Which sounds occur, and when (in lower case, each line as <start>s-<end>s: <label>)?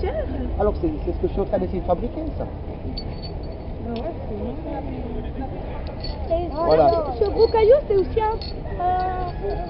0.0s-0.3s: female speech
0.0s-9.6s: conversation
0.0s-9.6s: mechanisms
0.0s-9.6s: wind
0.3s-2.5s: male speech
3.0s-3.8s: generic impact sounds
3.0s-3.1s: tick
3.9s-4.3s: female speech
4.0s-4.0s: tick
4.3s-5.5s: male speech
5.9s-5.9s: tick
6.0s-6.5s: generic impact sounds
6.0s-8.5s: female speech
6.6s-7.0s: male speech
6.7s-7.1s: generic impact sounds
7.3s-7.8s: generic impact sounds
8.5s-8.7s: generic impact sounds
8.7s-9.6s: female speech